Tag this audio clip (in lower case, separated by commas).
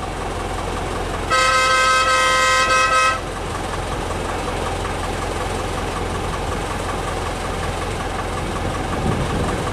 train, rail transport, toot, vehicle